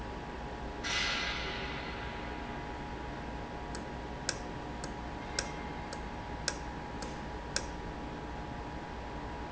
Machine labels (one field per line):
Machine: valve